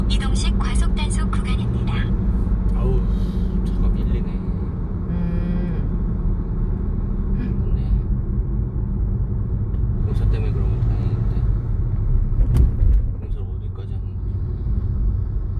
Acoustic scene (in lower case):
car